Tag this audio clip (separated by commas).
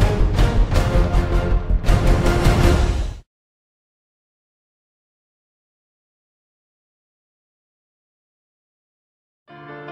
Music